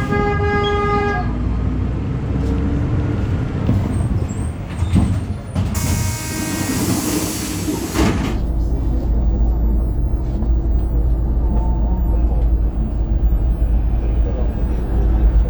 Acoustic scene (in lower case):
bus